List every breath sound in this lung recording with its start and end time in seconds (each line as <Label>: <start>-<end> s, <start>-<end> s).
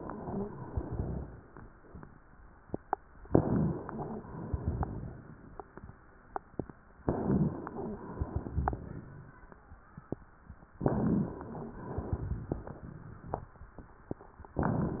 Inhalation: 3.29-4.26 s, 7.03-7.83 s, 10.82-11.79 s, 14.52-15.00 s
Exhalation: 4.30-5.43 s, 7.87-9.34 s, 11.81-13.54 s
Crackles: 4.42-4.92 s, 8.12-8.80 s, 11.95-12.63 s